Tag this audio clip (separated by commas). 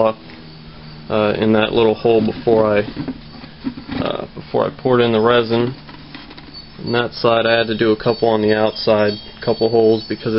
Speech, outside, rural or natural